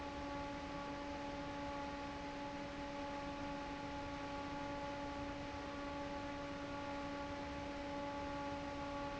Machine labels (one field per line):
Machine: fan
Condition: normal